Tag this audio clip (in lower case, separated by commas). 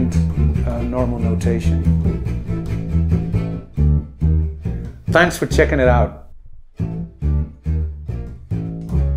playing double bass